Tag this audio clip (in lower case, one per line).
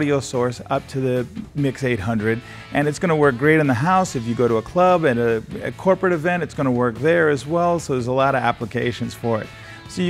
speech
music